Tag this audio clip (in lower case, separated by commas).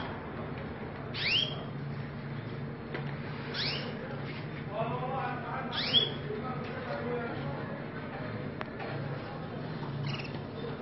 canary calling